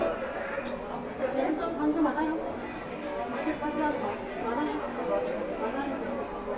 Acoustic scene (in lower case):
subway station